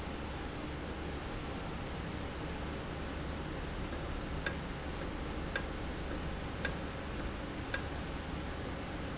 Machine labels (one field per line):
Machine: valve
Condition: normal